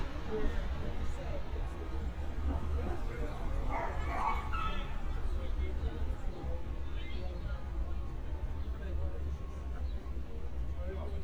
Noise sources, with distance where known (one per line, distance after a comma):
person or small group talking, far
unidentified human voice, far
dog barking or whining, near